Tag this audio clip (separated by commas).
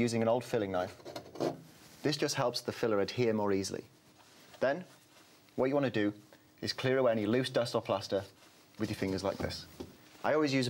Speech